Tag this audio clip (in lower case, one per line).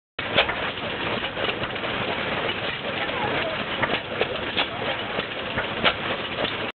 engine